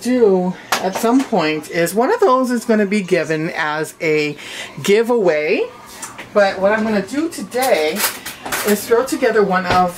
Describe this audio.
A women voice speaking over silverware being moved and shuffled